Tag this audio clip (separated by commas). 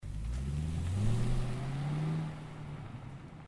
Vehicle